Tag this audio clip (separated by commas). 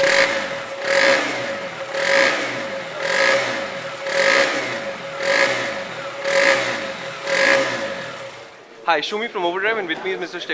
Vehicle, Motorcycle